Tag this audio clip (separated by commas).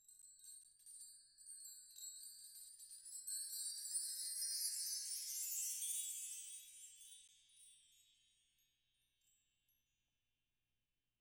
Chime, Bell, Wind chime